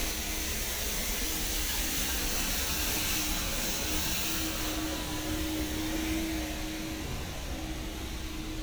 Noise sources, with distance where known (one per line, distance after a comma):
engine of unclear size